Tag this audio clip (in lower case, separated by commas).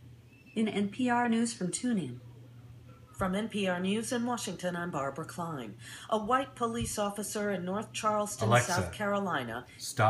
speech